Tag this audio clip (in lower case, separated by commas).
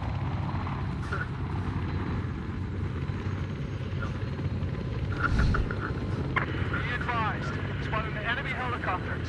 outside, rural or natural, speech